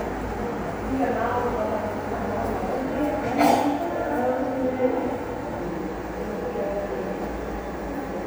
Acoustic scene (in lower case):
subway station